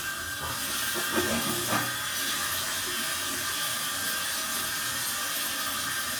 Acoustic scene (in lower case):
restroom